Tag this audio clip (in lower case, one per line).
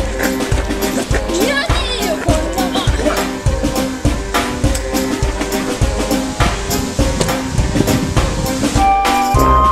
music
speech